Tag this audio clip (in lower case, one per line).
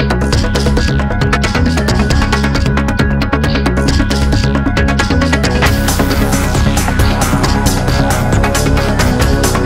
music